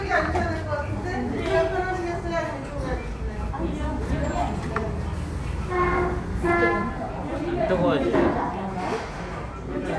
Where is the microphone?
in a restaurant